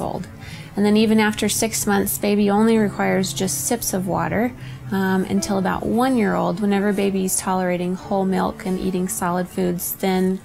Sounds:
Speech, Music

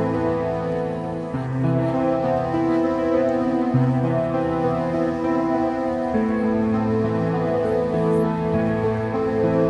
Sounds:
Music, Tender music

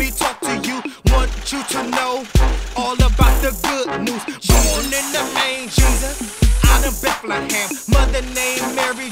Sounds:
Music

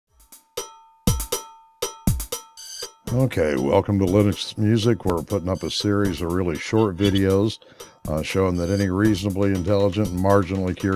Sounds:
Drum roll

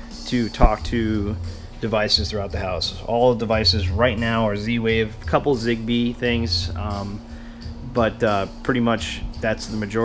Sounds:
Speech, Music

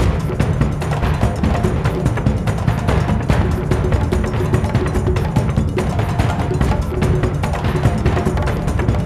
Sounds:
Background music, Music

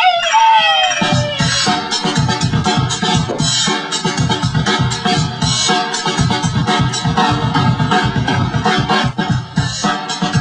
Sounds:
Electronic music, Techno, Music

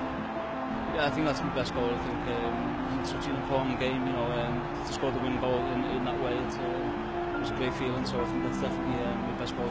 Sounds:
Music, Speech

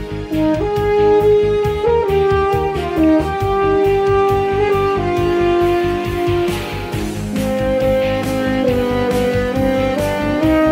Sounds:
playing french horn

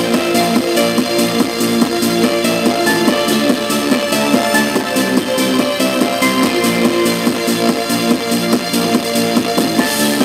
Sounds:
Music

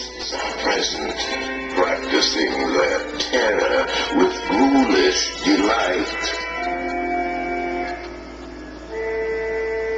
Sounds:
Music, Speech

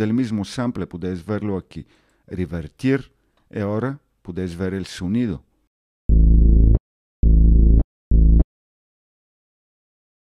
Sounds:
Speech, Sampler

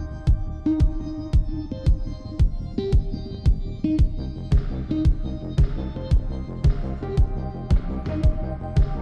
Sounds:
Music

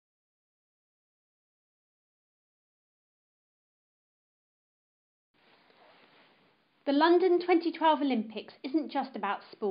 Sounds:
Speech

